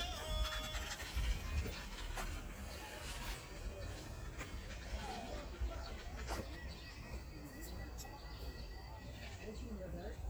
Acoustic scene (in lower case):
park